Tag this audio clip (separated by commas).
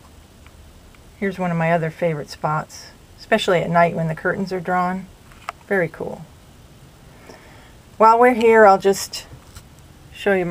Speech